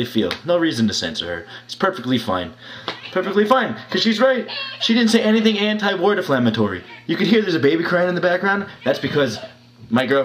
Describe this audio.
An adult male speaks over a distant crying baby